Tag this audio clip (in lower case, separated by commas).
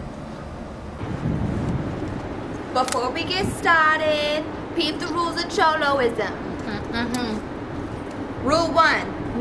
speech